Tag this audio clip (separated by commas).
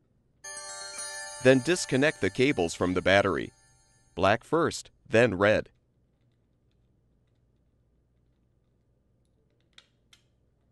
Music, Speech